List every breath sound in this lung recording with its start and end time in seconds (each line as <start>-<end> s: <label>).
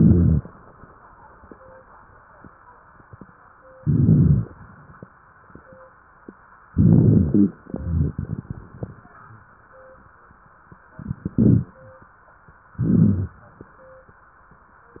0.00-0.42 s: inhalation
0.00-0.42 s: crackles
3.74-4.41 s: crackles
3.77-4.45 s: inhalation
4.43-5.10 s: exhalation
4.43-5.10 s: crackles
6.74-7.58 s: inhalation
6.74-7.58 s: crackles
7.61-9.07 s: exhalation
7.61-9.07 s: crackles
10.98-11.82 s: inhalation
10.98-11.82 s: crackles
12.78-13.62 s: inhalation
12.78-13.62 s: crackles